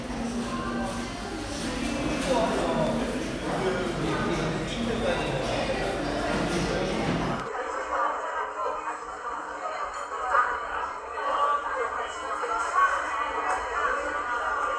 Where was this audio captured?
in a cafe